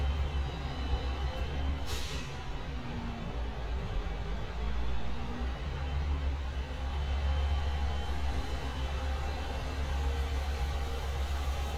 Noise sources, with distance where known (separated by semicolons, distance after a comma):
large-sounding engine, near; reverse beeper, near